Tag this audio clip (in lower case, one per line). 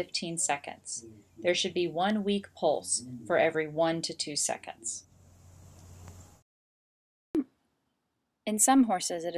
speech